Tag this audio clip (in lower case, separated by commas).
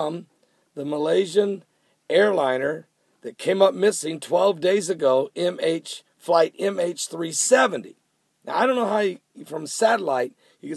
speech